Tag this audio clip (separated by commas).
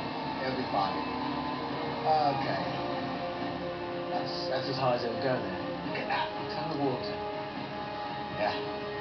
Speech, Vehicle, Music